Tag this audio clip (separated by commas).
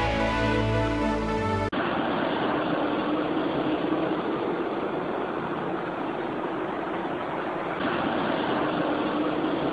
Musical instrument, Guitar, Music, Plucked string instrument